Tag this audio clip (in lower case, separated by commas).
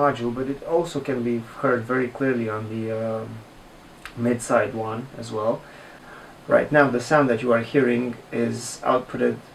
speech